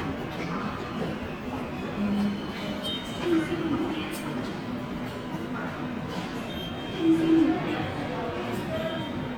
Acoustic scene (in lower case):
subway station